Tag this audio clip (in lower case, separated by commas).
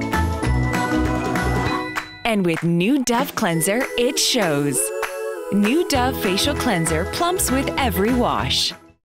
speech, music